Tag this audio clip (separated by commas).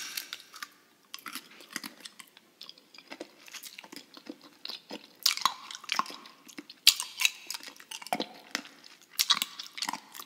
people eating apple